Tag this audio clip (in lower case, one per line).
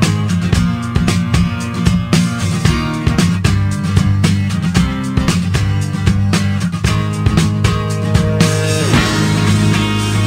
music